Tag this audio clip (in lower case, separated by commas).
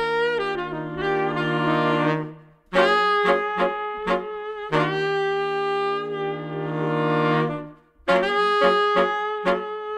saxophone, musical instrument, music, playing saxophone, jazz